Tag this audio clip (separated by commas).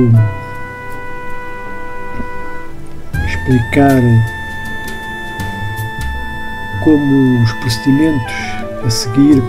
Speech, Music